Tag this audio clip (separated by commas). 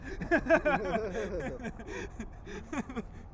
Laughter, Human voice